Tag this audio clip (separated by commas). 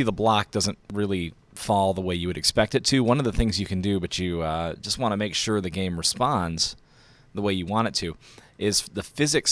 Speech